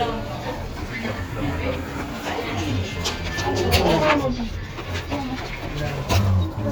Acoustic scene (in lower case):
elevator